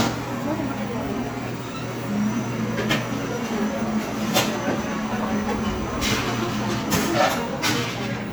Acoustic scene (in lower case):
cafe